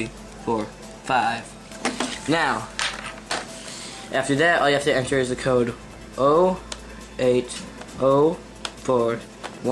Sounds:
speech, music

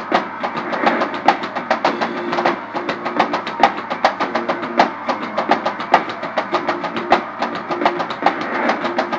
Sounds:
musical instrument, music

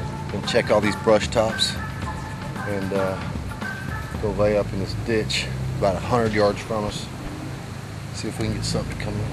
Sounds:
speech, music

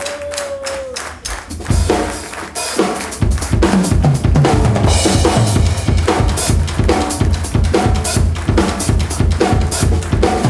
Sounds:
drum kit, percussion, musical instrument, hi-hat, snare drum, music, drum, cymbal

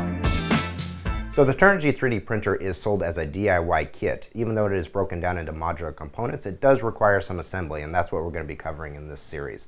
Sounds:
music, speech

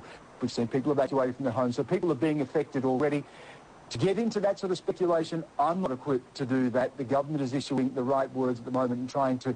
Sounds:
speech

